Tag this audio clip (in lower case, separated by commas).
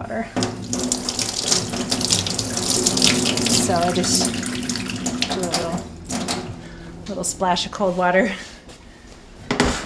faucet, water